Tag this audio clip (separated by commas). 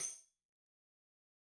Musical instrument, Tambourine, Percussion, Music